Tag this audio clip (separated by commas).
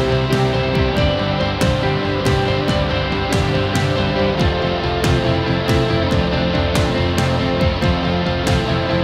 Music